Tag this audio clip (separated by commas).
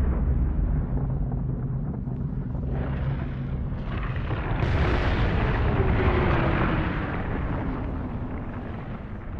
volcano explosion